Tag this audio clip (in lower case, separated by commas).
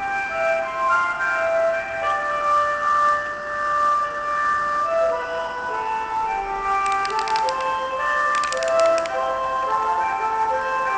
music